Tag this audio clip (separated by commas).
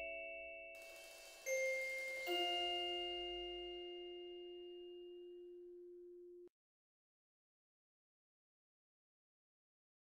Musical instrument, Music, Wind chime